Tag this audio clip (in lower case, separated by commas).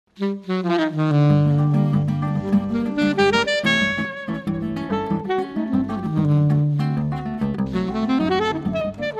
musical instrument, saxophone, music